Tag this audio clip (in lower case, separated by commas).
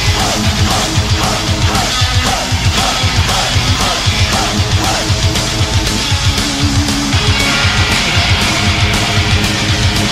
music